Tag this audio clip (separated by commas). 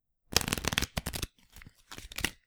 Domestic sounds